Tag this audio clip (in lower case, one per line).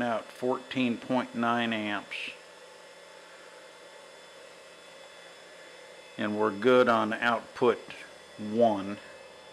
inside a small room
speech